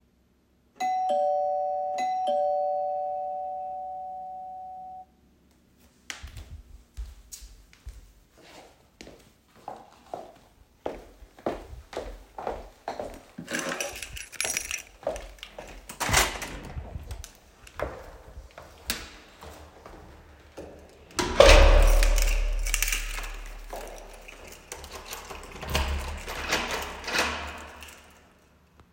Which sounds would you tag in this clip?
bell ringing, footsteps, keys, door